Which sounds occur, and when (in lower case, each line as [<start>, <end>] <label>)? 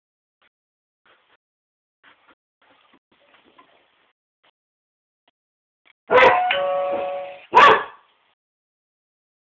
[6.09, 7.48] ding-dong
[6.50, 6.56] generic impact sounds
[7.54, 7.95] bark